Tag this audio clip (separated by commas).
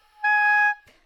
woodwind instrument, Music, Musical instrument